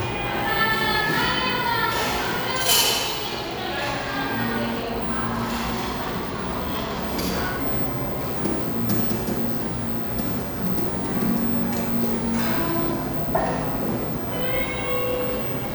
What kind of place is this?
cafe